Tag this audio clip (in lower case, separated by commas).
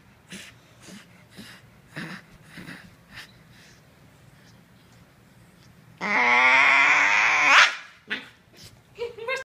speech